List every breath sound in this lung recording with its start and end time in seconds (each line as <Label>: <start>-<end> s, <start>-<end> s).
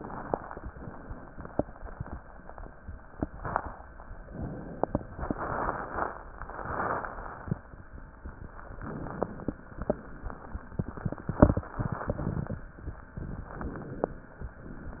Inhalation: 4.24-5.08 s, 8.65-9.56 s, 13.51-14.34 s
Exhalation: 5.08-6.28 s, 9.56-10.67 s
Crackles: 9.56-10.67 s, 13.51-14.34 s